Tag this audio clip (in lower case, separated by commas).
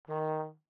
musical instrument, music, brass instrument